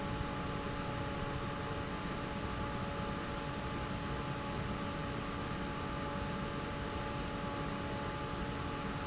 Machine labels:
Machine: fan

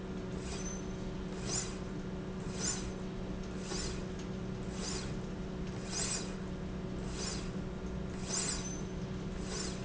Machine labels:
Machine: slide rail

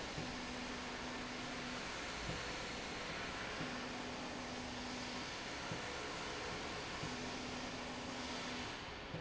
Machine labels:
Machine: slide rail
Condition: normal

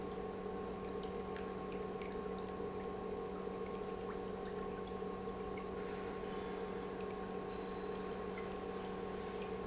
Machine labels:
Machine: pump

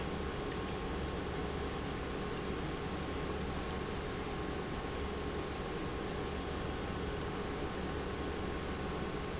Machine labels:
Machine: pump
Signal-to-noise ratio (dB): -6 dB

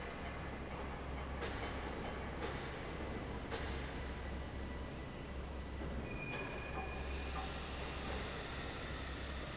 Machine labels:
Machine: fan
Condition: normal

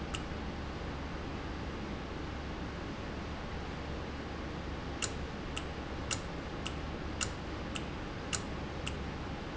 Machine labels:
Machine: valve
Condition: normal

